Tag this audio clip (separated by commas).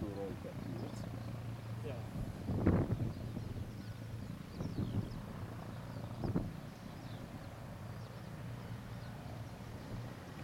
Speech